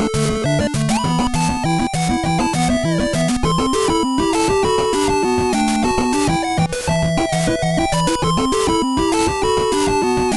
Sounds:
music

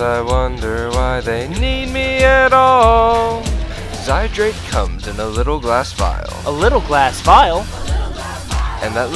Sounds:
music, soundtrack music, happy music

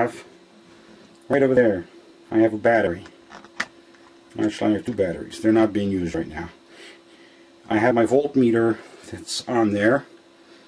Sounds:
speech, inside a large room or hall

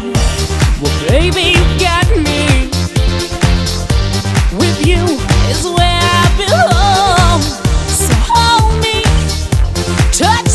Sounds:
music

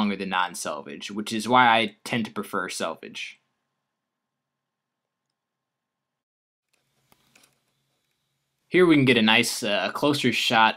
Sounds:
speech, inside a small room

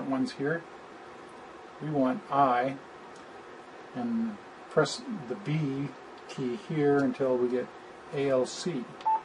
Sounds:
speech

